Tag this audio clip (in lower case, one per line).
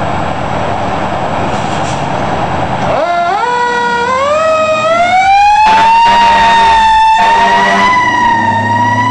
vehicle
engine
heavy engine (low frequency)